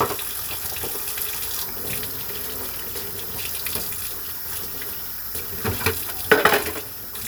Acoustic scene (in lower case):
kitchen